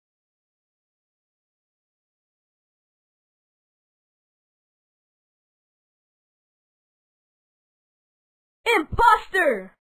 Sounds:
Speech

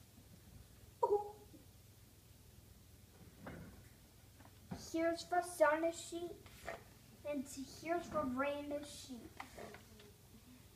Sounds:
Speech

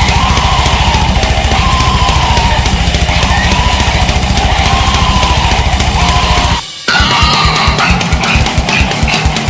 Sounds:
Animal, Music

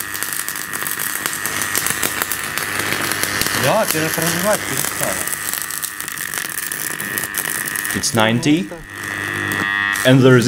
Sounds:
arc welding

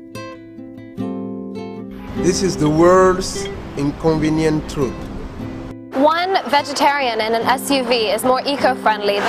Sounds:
Music, Speech

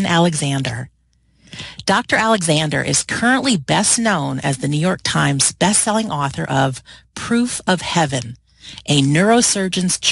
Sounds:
Speech

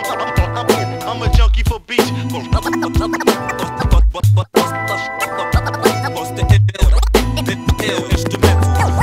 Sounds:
Music

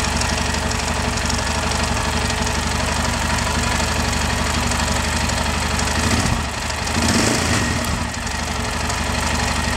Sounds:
Vehicle, Vibration, Engine, Medium engine (mid frequency)

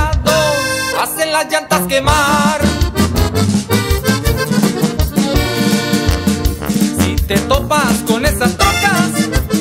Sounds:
Music

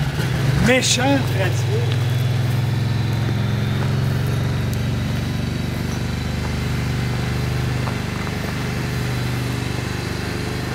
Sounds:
Vehicle, Fixed-wing aircraft, Speech, outside, urban or man-made

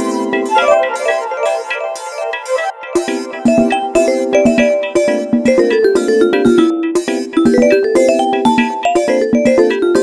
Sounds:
Music

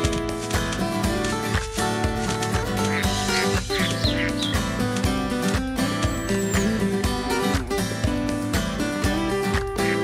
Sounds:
Music

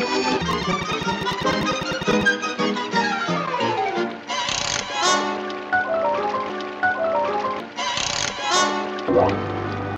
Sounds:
Music

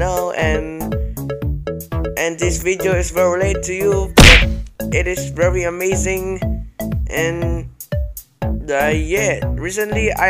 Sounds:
Speech, Music

